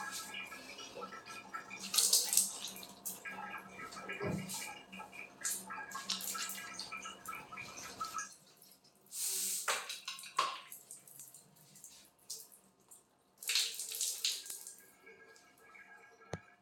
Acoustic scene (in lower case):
restroom